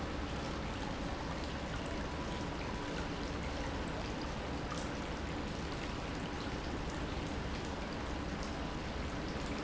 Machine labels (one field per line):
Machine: pump